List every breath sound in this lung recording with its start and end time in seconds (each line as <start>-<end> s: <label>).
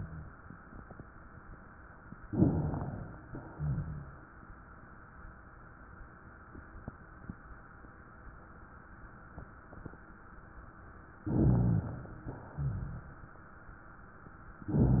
2.25-3.22 s: inhalation
3.27-4.32 s: exhalation
3.55-4.26 s: rhonchi
11.21-11.83 s: rhonchi
11.26-12.31 s: inhalation
12.33-13.38 s: exhalation
12.54-13.03 s: rhonchi